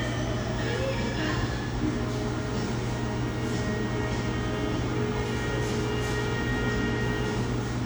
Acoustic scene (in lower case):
cafe